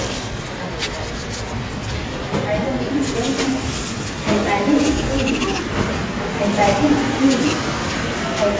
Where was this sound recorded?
in a subway station